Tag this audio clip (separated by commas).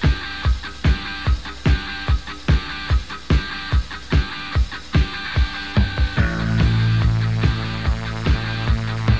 Music